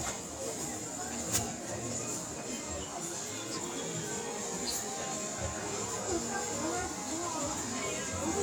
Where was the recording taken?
in a crowded indoor space